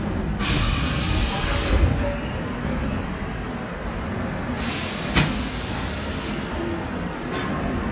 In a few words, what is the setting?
subway train